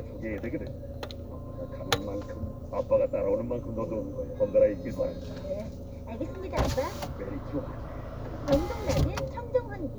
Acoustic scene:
car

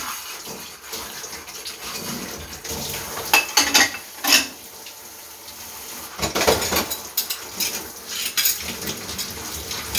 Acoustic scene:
kitchen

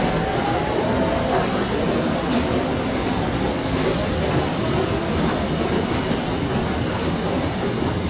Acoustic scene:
subway station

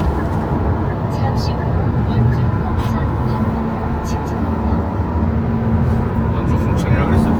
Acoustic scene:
car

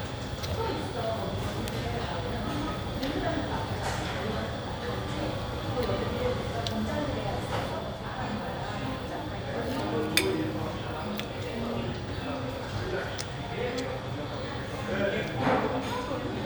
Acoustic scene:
cafe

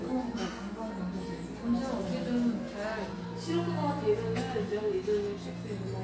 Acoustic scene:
cafe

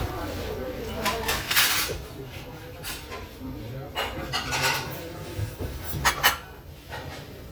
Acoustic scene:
restaurant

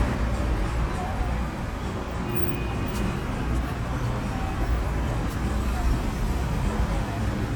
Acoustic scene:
street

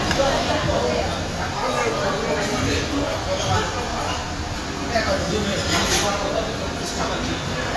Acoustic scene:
crowded indoor space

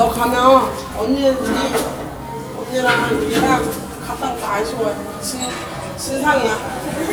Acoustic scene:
cafe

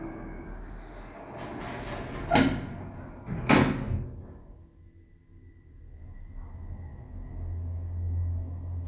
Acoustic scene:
elevator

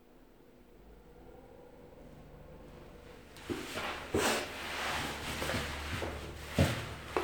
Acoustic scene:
elevator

